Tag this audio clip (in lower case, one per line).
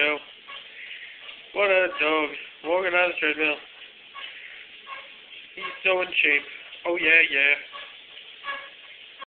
speech